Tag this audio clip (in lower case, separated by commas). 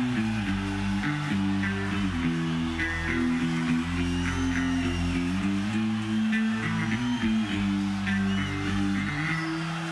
music, musical instrument, plucked string instrument, electric guitar, guitar